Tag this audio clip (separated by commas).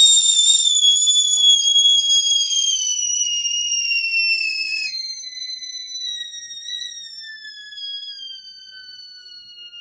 Whistle